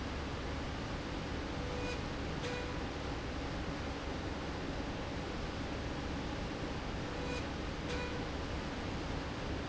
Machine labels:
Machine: slide rail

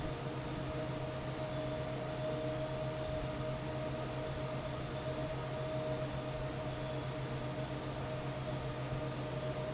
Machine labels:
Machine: fan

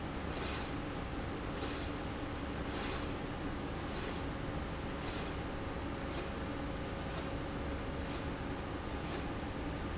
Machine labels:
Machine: slide rail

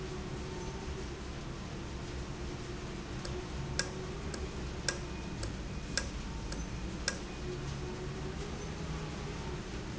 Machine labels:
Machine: valve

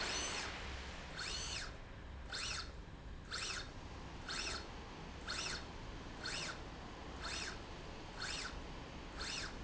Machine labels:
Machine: slide rail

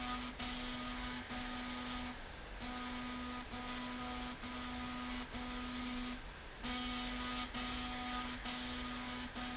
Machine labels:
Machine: slide rail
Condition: abnormal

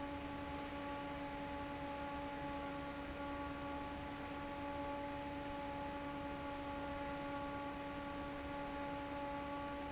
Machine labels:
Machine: fan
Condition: normal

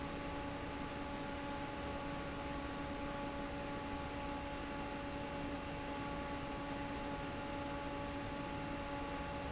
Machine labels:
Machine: fan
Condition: normal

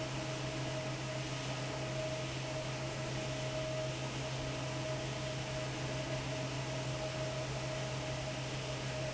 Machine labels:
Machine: fan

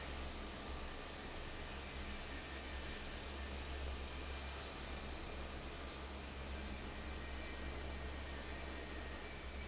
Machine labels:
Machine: fan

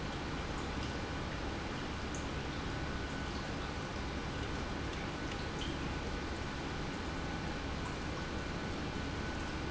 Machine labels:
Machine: pump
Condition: normal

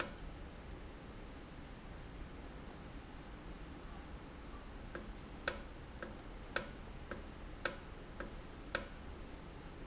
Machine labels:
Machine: valve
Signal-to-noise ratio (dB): 6 dB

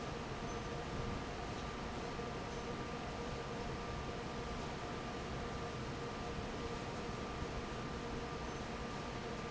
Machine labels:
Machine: fan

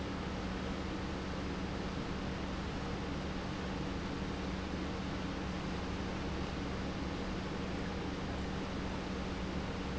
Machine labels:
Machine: pump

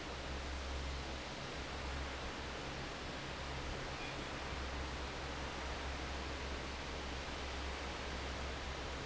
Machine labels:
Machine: fan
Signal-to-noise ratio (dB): 0 dB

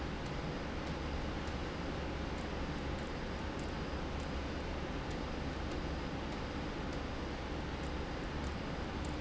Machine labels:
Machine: slide rail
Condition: abnormal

